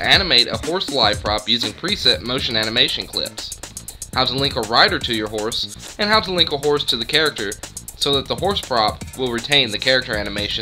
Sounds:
music, speech

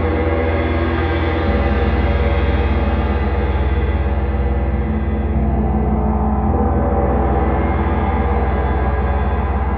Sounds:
playing gong

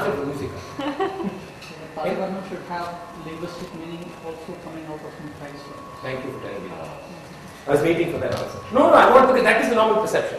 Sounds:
speech

